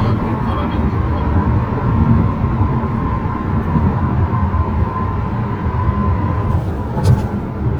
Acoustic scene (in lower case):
car